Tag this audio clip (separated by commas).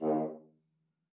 Brass instrument, Music, Musical instrument